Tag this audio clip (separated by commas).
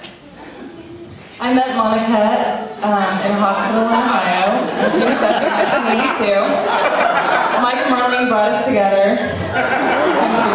Narration, Speech, woman speaking